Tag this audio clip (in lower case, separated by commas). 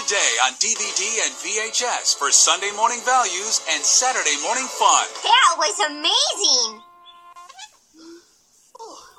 speech, music